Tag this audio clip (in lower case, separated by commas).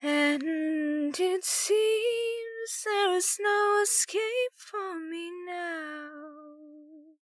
human voice, female singing, singing